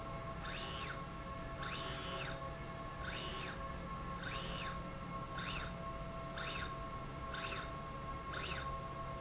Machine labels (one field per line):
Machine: slide rail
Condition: normal